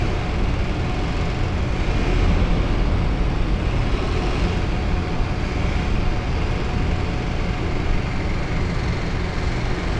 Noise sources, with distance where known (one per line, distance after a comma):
large-sounding engine, near